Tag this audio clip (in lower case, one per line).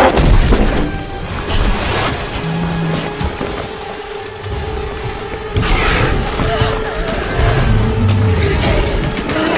dinosaurs bellowing